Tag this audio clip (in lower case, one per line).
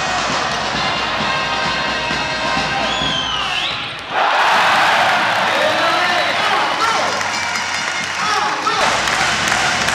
speech
music